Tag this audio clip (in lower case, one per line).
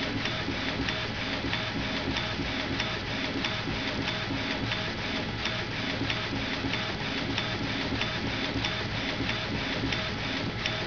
printer